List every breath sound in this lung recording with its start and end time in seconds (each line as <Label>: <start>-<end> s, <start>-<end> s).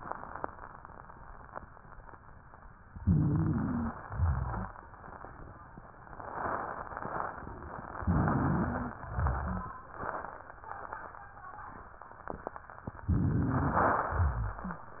Inhalation: 2.93-3.92 s, 7.97-8.93 s, 13.07-14.07 s
Exhalation: 3.92-4.72 s, 9.04-9.74 s, 14.13-14.79 s
Wheeze: 2.93-3.92 s, 7.97-8.93 s, 13.07-13.73 s
Rhonchi: 4.04-4.72 s, 9.04-9.74 s, 14.13-14.79 s